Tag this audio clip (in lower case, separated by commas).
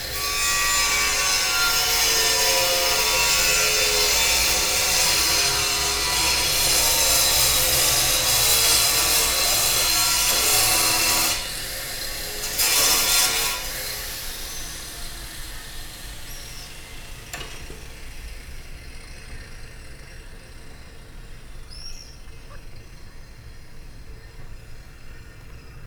sawing, tools